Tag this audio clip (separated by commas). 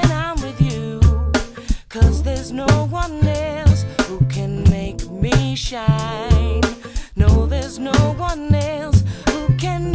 Music